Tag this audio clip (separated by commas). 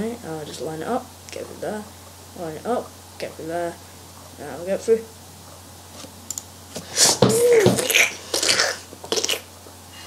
Speech